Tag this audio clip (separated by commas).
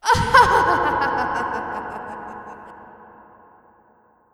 Laughter, Human voice